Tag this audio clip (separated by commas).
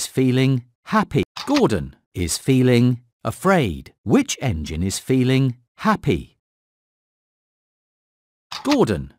Speech